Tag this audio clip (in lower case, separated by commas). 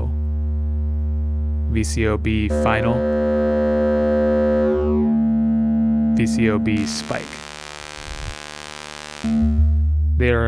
speech